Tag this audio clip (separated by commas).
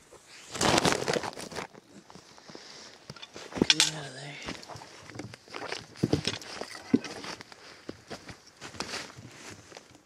Speech